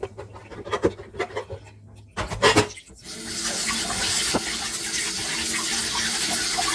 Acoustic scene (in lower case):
kitchen